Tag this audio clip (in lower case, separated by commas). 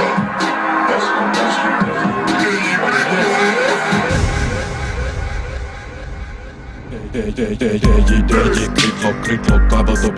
music, disco